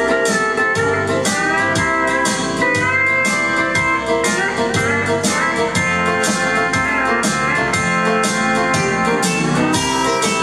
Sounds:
Music, slide guitar, Musical instrument, Plucked string instrument

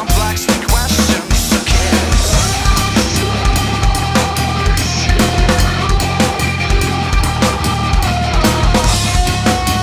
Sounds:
Cymbal, Musical instrument, Drum kit, Music, Drum

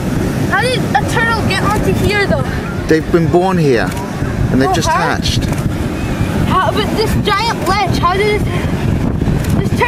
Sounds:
Speech

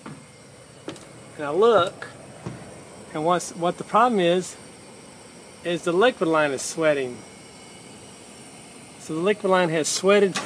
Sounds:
Speech

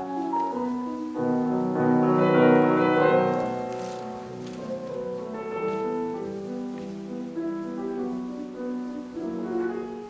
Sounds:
Music, Musical instrument

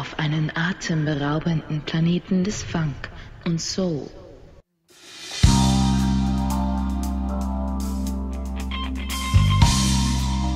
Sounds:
Music, Speech

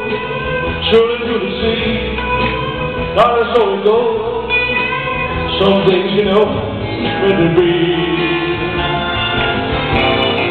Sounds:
Music, Male singing

